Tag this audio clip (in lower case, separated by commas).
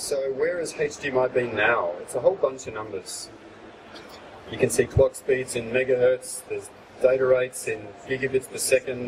speech